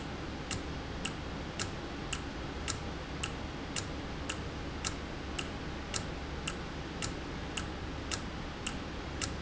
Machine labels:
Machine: valve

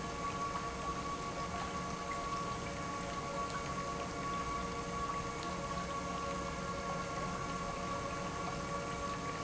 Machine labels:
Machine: pump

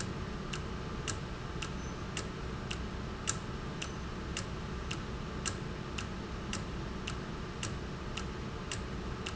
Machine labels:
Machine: valve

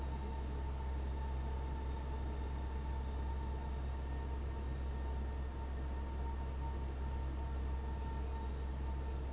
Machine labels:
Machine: fan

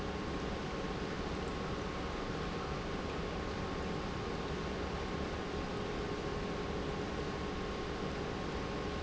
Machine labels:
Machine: pump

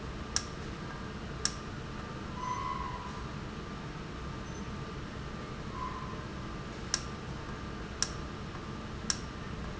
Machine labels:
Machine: valve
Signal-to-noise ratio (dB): -6 dB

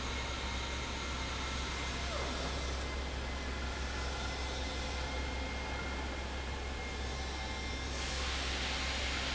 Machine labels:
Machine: fan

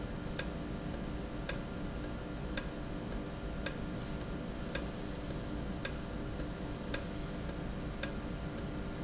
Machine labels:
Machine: valve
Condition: normal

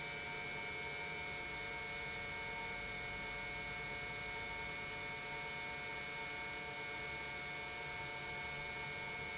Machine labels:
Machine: pump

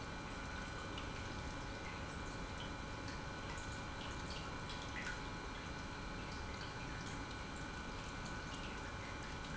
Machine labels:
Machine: pump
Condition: normal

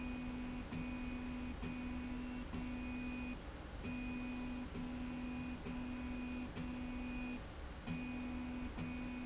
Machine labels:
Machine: slide rail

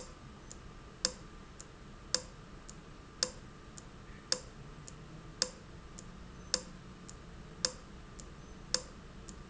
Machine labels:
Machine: valve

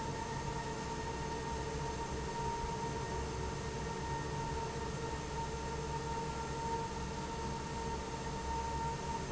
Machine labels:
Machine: fan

